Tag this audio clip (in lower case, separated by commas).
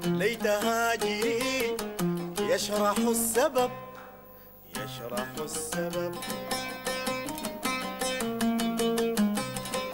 music, bowed string instrument